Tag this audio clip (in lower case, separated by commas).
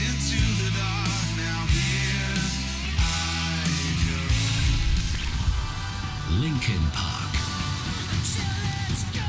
music, speech